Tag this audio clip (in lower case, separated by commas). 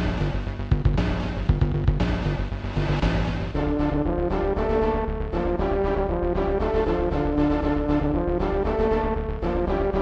music